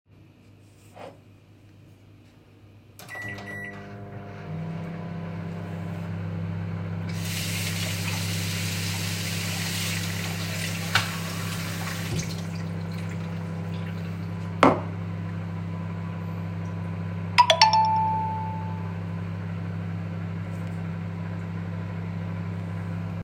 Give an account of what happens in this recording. I pressed microwave's digital botton and it started to work, after that i opended tap watter and filled my glass and stopped the watter. then while microwave was still working, i put my glass on the cabinet and received a phone notification.